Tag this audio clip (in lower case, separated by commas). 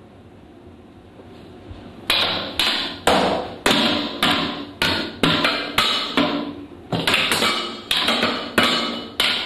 inside a small room